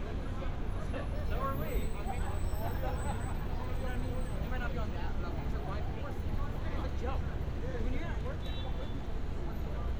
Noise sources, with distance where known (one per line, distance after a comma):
car horn
person or small group talking